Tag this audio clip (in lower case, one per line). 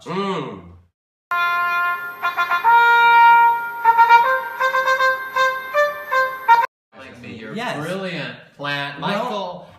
wind instrument
inside a small room
music
speech